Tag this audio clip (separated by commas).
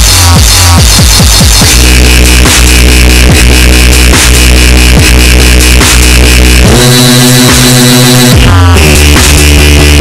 Music, Dubstep